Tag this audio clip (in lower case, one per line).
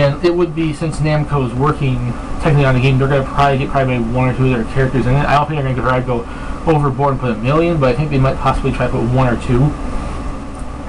speech